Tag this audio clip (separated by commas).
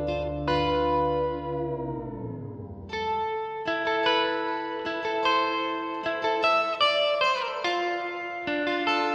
Plucked string instrument, Music